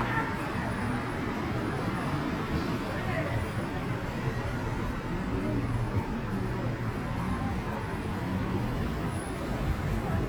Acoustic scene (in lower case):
street